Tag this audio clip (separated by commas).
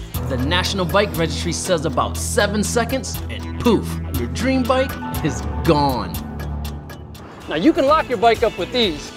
Speech, Music